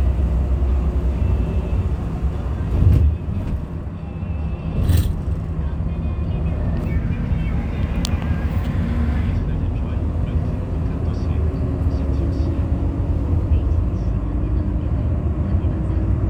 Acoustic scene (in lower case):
bus